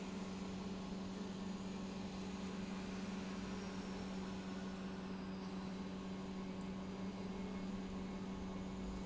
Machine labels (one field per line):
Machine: pump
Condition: normal